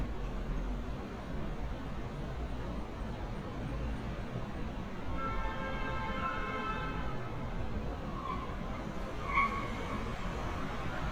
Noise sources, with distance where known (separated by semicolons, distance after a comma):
car horn, far